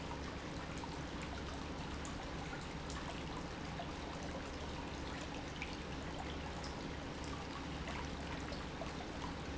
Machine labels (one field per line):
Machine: pump